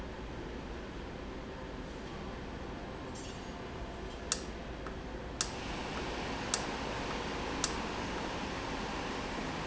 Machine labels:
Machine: valve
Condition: normal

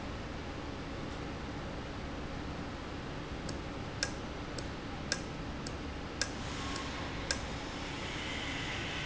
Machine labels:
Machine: valve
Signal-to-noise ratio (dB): -6 dB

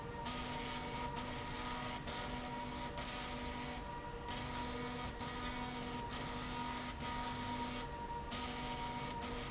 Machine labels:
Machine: slide rail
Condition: abnormal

